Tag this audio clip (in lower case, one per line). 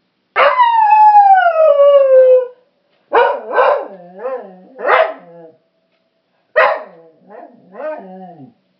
animal
dog
bark
pets